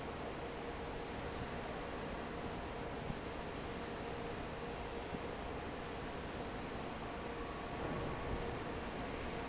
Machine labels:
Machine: fan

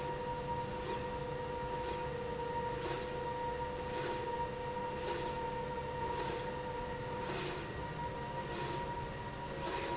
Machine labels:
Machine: slide rail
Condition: normal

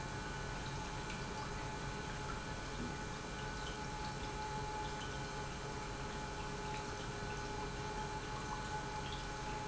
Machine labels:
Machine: pump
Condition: normal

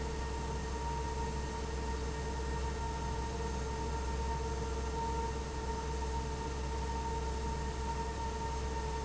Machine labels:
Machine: fan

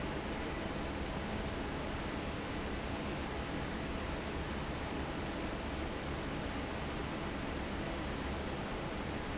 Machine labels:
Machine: fan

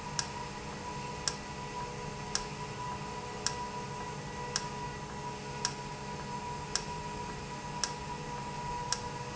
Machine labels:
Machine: valve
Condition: normal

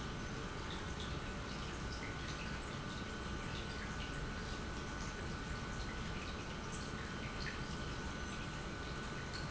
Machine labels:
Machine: pump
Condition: normal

